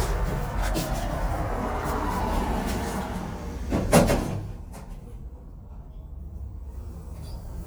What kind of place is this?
elevator